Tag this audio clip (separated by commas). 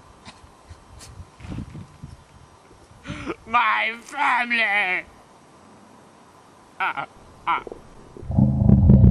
Speech